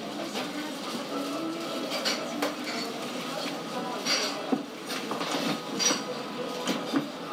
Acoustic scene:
cafe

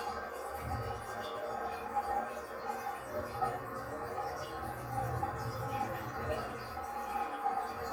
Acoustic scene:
restroom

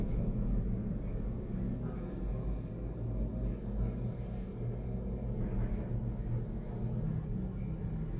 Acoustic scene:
elevator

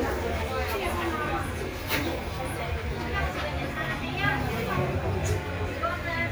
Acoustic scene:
crowded indoor space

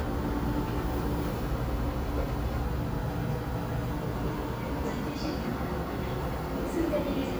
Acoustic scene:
subway station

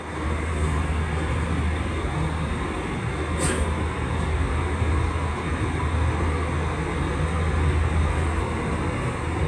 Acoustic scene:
subway train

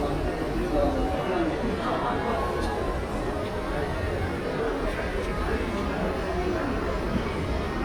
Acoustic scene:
crowded indoor space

